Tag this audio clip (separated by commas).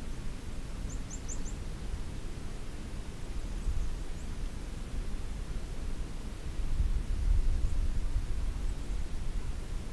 alligators